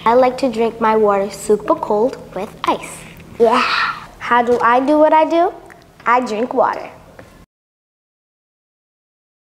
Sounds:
Speech

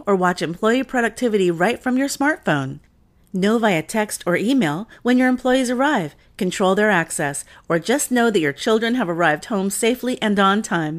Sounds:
Speech

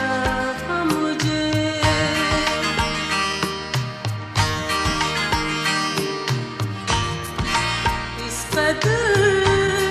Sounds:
Music

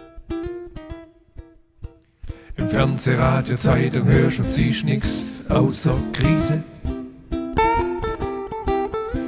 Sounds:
Ukulele, Music

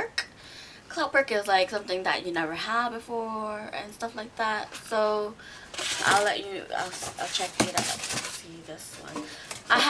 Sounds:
Speech

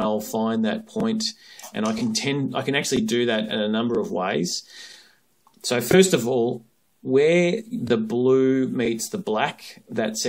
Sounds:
Speech

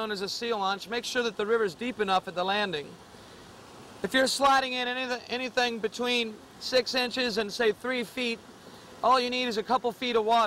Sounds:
Speech

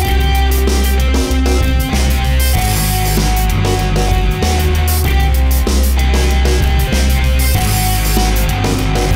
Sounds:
Music

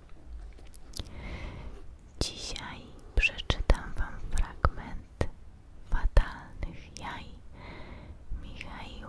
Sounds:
Whispering

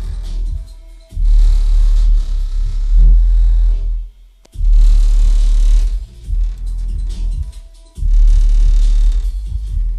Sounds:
Music

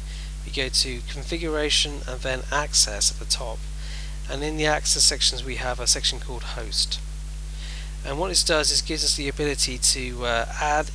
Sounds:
Speech

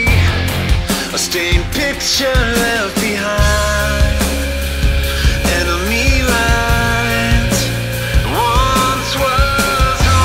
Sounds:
Music, Soul music

